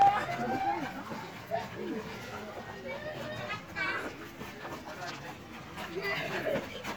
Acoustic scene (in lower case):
park